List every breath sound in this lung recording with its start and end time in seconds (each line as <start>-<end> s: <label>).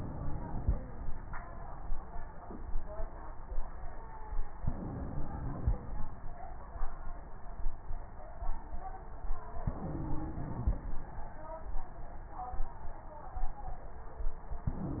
0.00-0.78 s: inhalation
4.60-5.77 s: inhalation
9.67-10.85 s: inhalation
14.67-15.00 s: inhalation